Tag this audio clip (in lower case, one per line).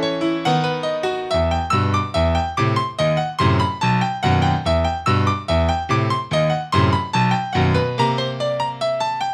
music